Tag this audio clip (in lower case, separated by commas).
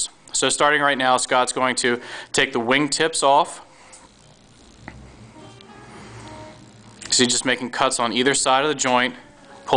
speech, music